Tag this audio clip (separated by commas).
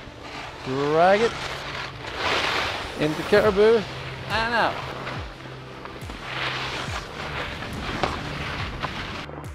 skiing